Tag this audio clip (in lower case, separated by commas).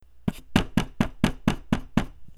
door, knock, domestic sounds